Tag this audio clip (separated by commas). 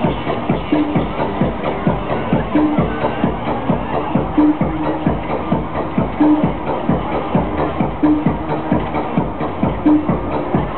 Music, Techno, Electronic music